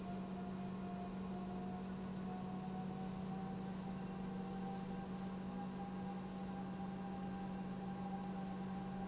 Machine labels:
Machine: pump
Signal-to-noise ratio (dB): 6 dB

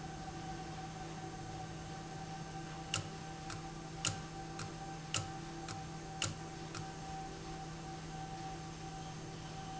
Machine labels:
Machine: valve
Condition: abnormal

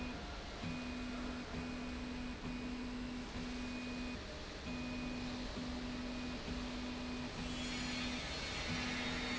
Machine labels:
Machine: slide rail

